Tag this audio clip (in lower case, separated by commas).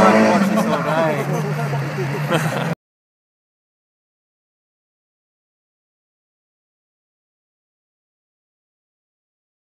vehicle, speech, car